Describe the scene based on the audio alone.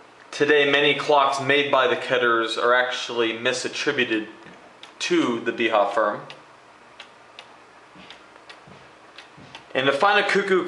A man speaks as a clock faintly ticks